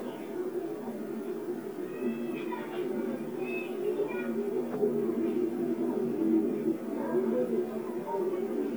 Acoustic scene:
park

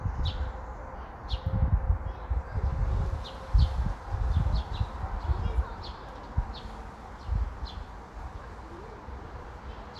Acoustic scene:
park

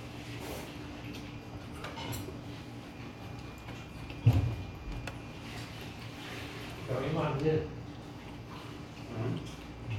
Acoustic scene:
restaurant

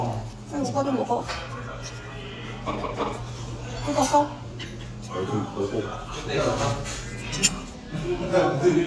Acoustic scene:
restaurant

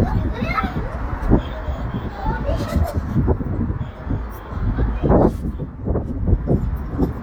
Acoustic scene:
residential area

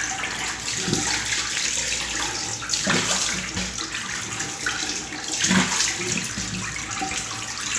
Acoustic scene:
restroom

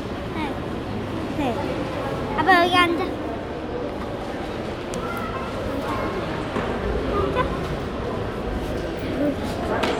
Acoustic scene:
crowded indoor space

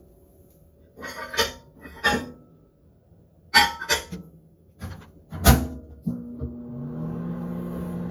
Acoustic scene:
kitchen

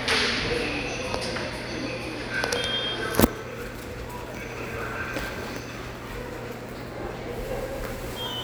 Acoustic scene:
subway station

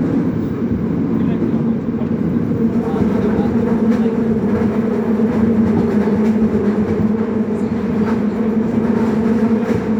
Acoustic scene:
subway train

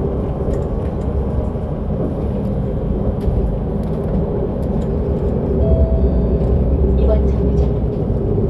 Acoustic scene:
bus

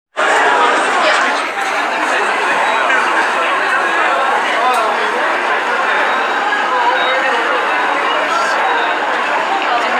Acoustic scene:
subway station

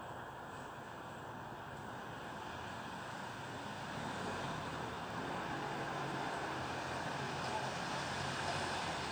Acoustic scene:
residential area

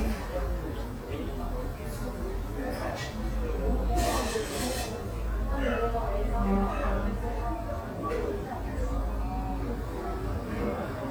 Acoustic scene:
cafe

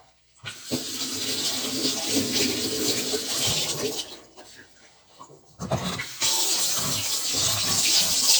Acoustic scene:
kitchen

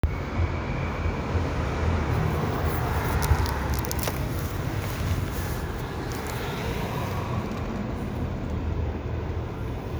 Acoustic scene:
street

